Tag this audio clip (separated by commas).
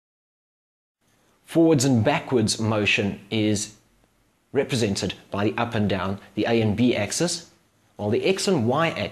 Speech, Male speech